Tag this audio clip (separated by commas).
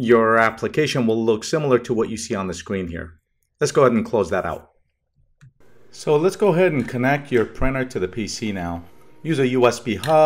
Speech